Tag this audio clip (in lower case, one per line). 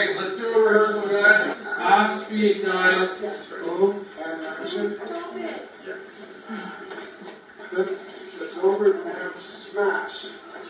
speech